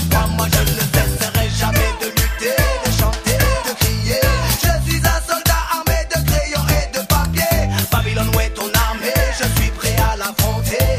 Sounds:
reggae
music
afrobeat

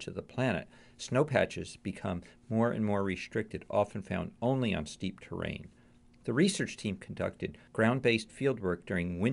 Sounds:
speech

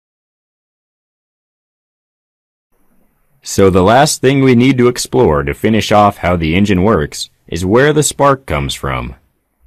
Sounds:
speech

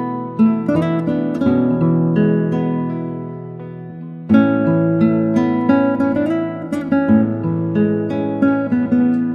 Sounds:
music
guitar
musical instrument
strum
plucked string instrument

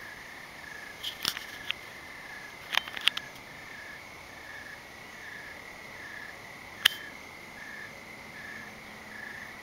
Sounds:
outside, rural or natural

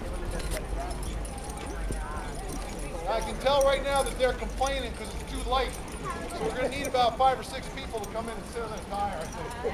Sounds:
clip-clop
speech

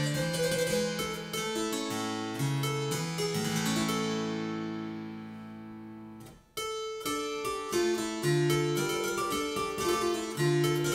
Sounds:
harpsichord
playing harpsichord
music

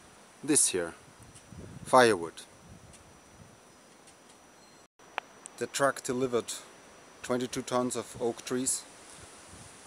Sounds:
speech

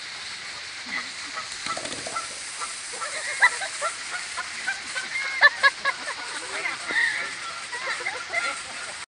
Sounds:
honk
speech

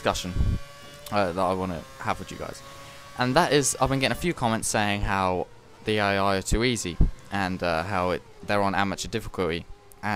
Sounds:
speech

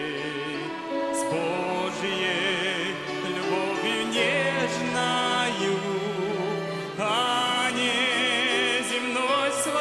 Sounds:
musical instrument
music
orchestra
fiddle

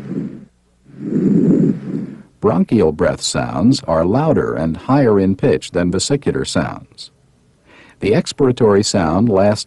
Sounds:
speech

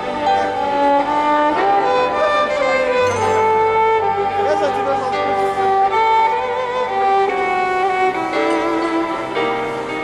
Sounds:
fiddle
musical instrument
speech
music

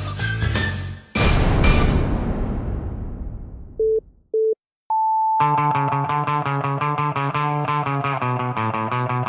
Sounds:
music

